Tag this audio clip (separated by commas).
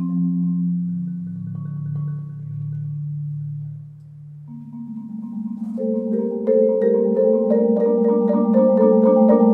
Vibraphone, Music, Marimba